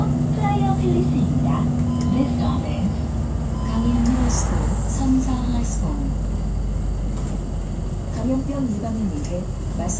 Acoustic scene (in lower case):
bus